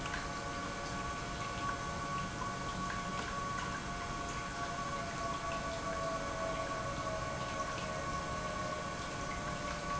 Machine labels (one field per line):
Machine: pump